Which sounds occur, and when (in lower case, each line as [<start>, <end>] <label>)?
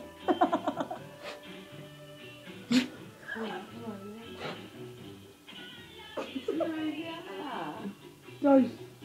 [0.00, 9.04] mechanisms
[0.00, 9.04] music
[0.22, 1.04] laughter
[1.21, 1.47] breathing
[2.65, 2.89] sneeze
[3.19, 4.32] female speech
[3.26, 3.68] animal
[4.36, 4.58] breathing
[5.42, 7.77] female singing
[6.10, 6.73] laughter
[6.45, 7.93] female speech
[8.36, 8.76] speech